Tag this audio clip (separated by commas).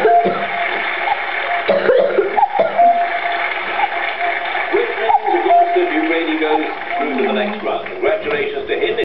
Speech